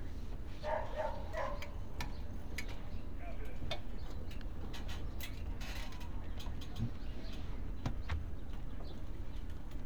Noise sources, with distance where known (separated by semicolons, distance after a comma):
unidentified human voice; dog barking or whining, near